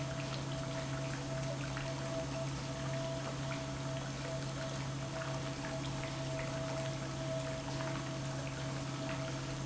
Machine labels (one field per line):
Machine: pump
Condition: normal